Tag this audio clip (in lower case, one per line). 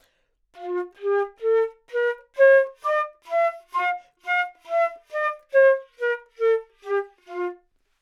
music
wind instrument
musical instrument